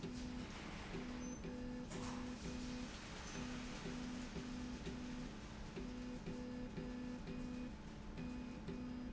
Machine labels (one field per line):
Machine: slide rail